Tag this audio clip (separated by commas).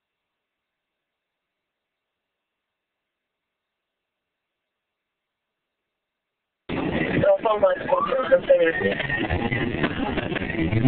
Speech